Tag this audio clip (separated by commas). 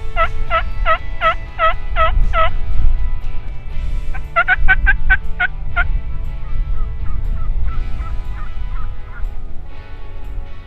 turkey gobbling